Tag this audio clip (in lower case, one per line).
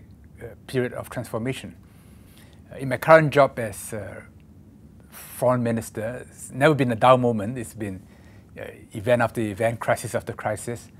man speaking
speech